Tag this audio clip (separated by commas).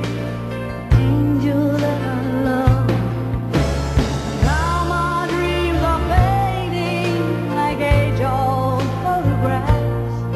Music, Christian music